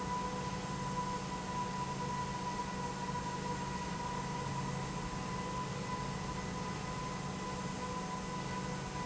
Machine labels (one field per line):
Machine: pump